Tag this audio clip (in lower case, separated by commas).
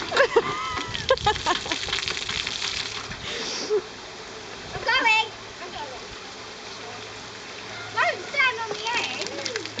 speech